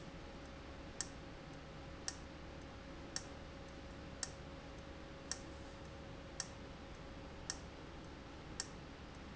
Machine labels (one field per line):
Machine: valve